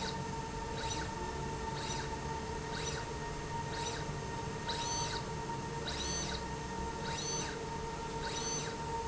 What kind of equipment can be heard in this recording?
slide rail